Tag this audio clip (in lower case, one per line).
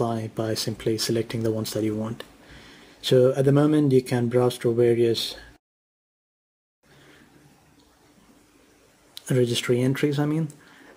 speech